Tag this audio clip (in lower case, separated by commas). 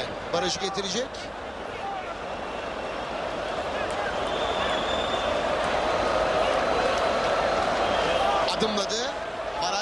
speech